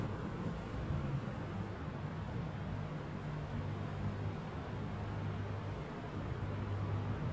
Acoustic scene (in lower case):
residential area